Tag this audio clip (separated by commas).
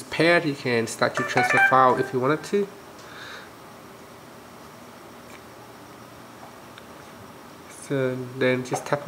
Speech